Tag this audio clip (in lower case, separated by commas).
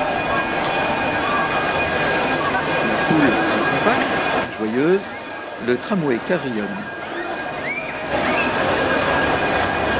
speech